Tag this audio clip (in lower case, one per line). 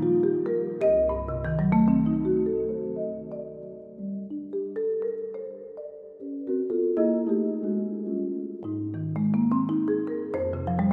xylophone